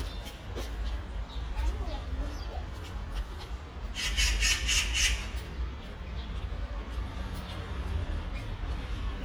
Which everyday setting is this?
residential area